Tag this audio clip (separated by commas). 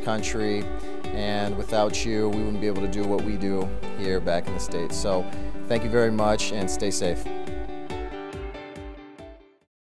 Music, Speech